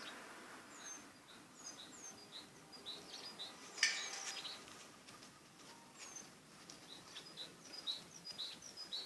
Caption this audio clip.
Birds chirp in the distance with some nearby light rustling